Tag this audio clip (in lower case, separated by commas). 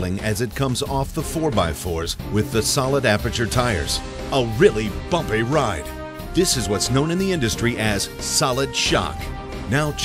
speech, music